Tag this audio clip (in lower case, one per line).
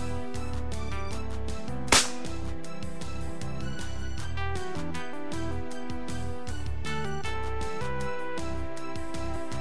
music